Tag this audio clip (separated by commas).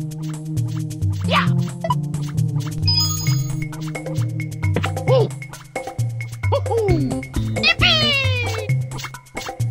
Music